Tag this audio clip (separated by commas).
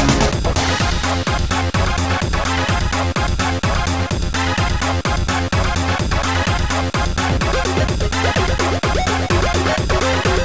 Music, Theme music, Rhythm and blues